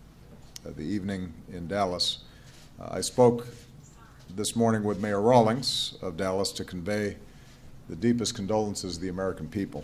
A man giving a speech